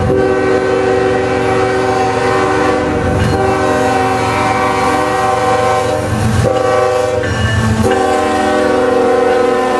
Train horn and train crossing bell